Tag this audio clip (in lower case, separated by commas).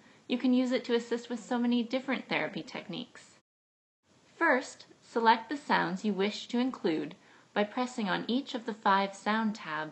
speech, woman speaking